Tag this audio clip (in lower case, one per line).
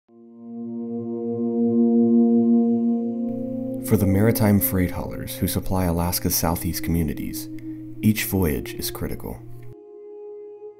speech
music
ambient music